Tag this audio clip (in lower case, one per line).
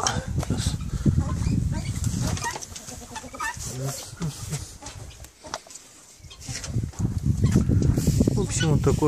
pheasant crowing